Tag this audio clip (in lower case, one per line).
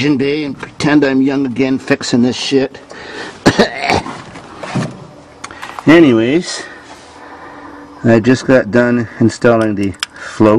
speech